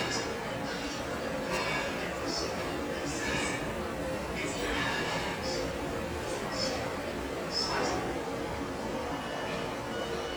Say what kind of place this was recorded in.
restaurant